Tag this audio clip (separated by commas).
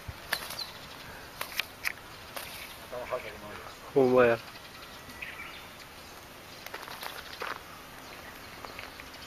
pets, Animal, Speech, Snake, Cat